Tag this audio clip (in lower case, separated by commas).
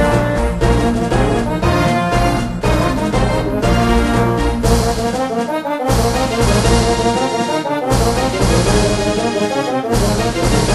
theme music, music